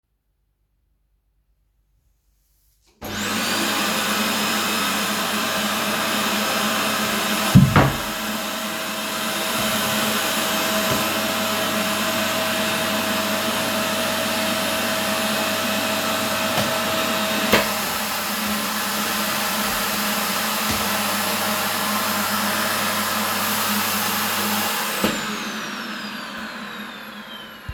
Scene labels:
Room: living room; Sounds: vacuum cleaner

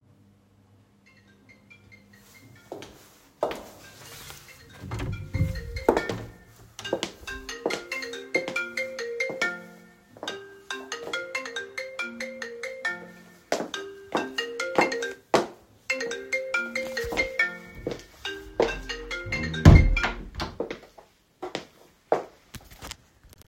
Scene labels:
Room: hallway, office; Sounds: phone ringing, footsteps, door (more than once)

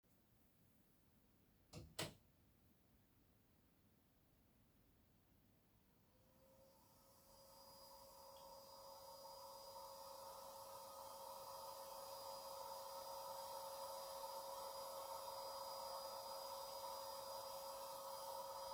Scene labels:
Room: living room; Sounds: light switch, vacuum cleaner

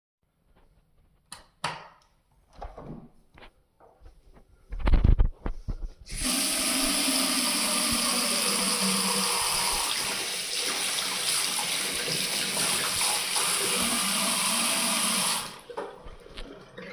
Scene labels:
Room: lavatory; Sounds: light switch, door, running water

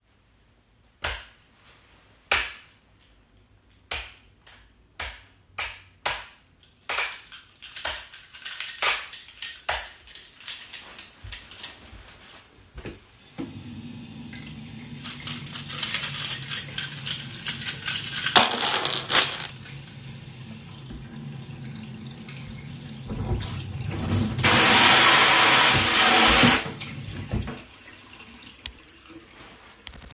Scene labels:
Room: kitchen; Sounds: light switch, keys, running water

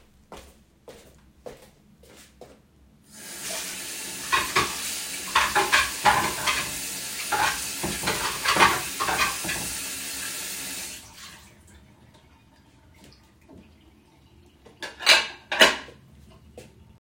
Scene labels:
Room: kitchen; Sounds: footsteps, running water, cutlery and dishes

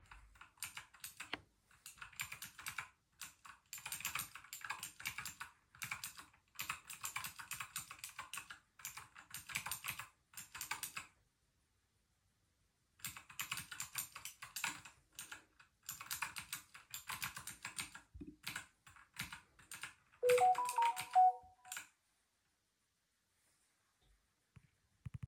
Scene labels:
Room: office; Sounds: keyboard typing, phone ringing

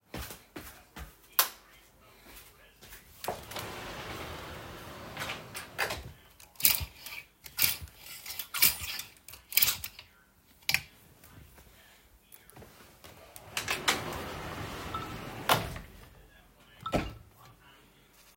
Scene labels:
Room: bedroom; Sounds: footsteps, light switch, wardrobe or drawer (more than once), phone ringing

